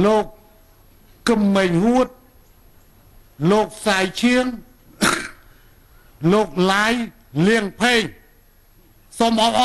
A man delivering a speech